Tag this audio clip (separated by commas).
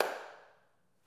Hands, Clapping